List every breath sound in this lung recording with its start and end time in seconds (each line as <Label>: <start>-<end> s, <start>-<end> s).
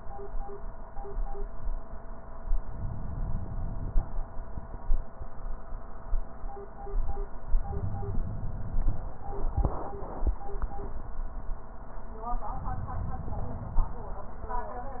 Inhalation: 2.70-4.20 s, 7.65-9.15 s, 12.53-14.03 s